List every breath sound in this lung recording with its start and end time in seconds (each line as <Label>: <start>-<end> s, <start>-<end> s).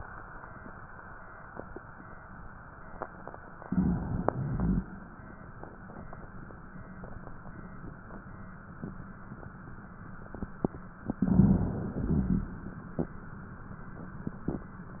Inhalation: 3.61-4.36 s, 11.06-11.97 s
Exhalation: 4.34-5.08 s, 11.97-12.82 s
Crackles: 3.57-4.32 s, 4.34-5.08 s, 11.06-11.97 s, 11.97-12.82 s